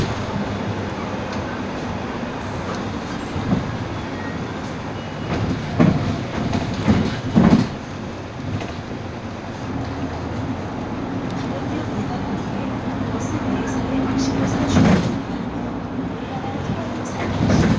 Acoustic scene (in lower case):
bus